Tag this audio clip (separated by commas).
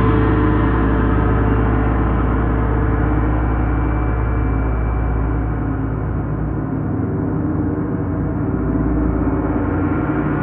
playing gong